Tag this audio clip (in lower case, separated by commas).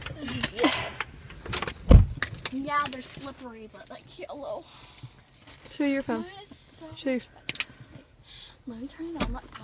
speech, female speech